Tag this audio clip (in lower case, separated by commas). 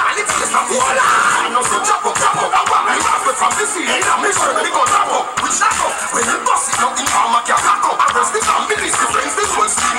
music